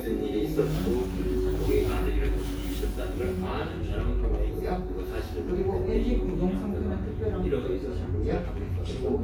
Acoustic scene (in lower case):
crowded indoor space